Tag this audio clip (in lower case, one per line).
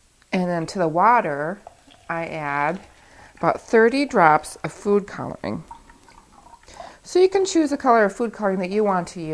water